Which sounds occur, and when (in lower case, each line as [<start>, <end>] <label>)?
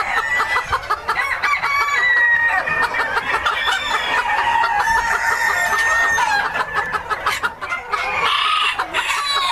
[0.00, 0.63] crowing
[0.00, 9.51] cluck
[1.07, 2.57] crowing
[3.44, 6.56] crowing